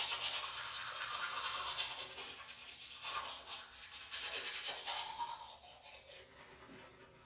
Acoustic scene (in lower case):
restroom